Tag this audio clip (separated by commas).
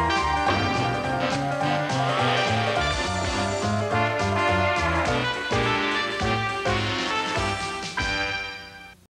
Music